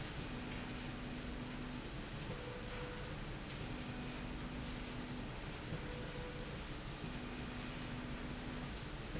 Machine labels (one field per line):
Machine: slide rail